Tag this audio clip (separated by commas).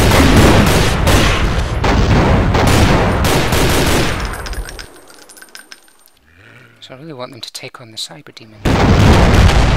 Speech